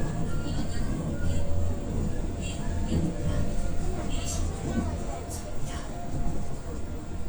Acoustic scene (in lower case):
subway train